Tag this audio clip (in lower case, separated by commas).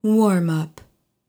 human voice, speech, female speech